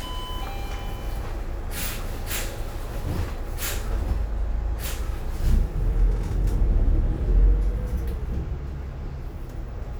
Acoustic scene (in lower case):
bus